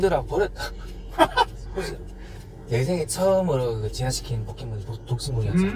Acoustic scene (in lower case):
car